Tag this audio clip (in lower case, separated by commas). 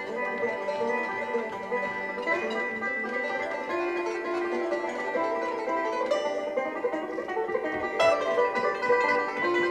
musical instrument, music, banjo, plucked string instrument, bluegrass, playing banjo, bowed string instrument, country